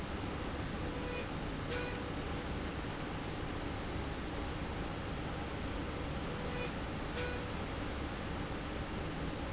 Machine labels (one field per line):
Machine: slide rail